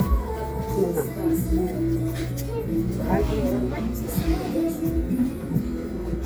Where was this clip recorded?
in a crowded indoor space